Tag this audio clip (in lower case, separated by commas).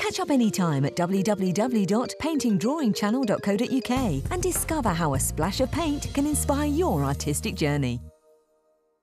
speech, music